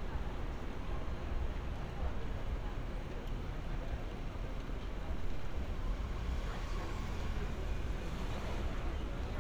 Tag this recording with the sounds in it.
person or small group talking